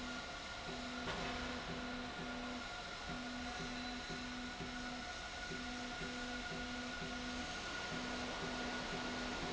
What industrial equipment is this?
slide rail